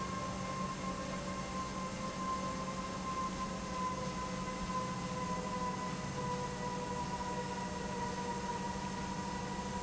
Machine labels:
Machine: pump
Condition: normal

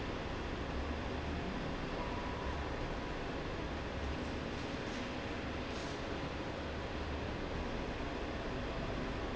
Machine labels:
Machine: slide rail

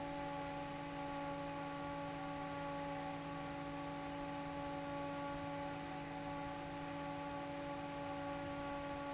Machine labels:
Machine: fan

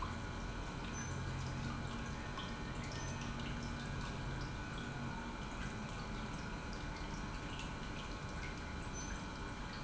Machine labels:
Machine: pump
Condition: normal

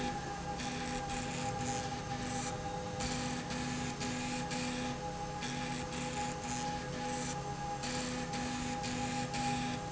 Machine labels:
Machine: slide rail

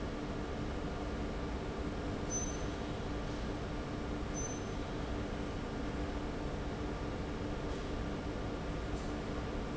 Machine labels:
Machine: fan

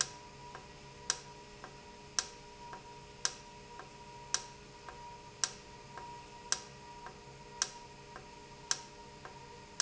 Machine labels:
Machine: valve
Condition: normal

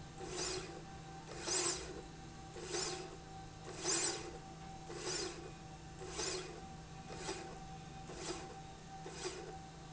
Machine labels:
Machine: slide rail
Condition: normal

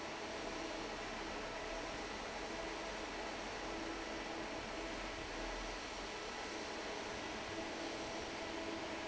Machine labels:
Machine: fan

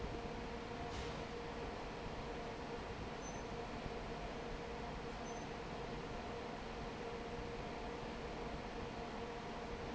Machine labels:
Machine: fan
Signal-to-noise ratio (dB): 6 dB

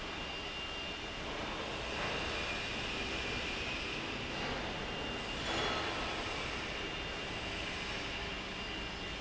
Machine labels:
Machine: fan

